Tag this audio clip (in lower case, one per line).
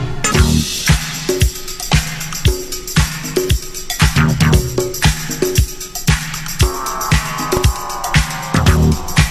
music
disco
funk